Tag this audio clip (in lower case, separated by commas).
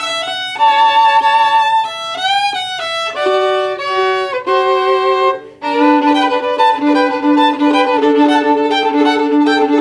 music, musical instrument, fiddle, violin